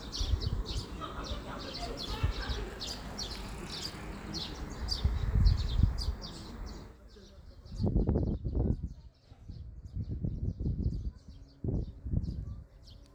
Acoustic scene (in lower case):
park